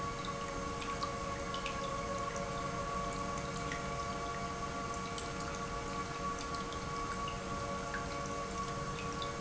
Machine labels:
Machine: pump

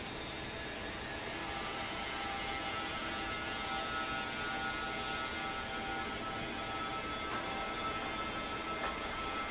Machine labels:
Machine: fan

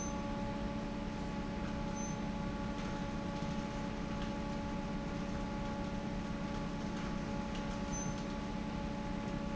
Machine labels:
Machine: fan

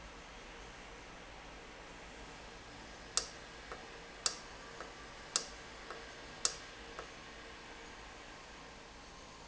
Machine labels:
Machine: valve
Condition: normal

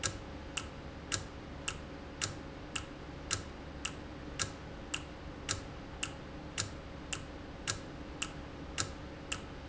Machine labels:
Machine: valve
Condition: normal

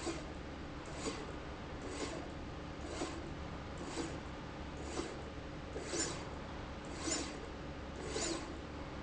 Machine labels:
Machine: slide rail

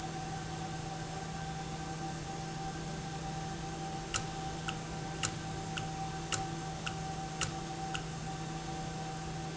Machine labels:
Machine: valve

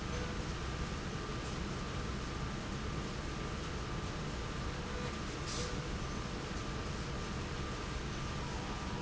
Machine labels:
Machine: slide rail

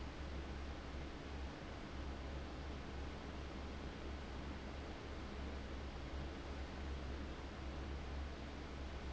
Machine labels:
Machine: fan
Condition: abnormal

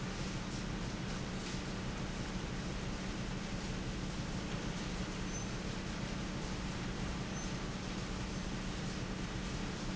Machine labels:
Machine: fan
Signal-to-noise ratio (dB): -6 dB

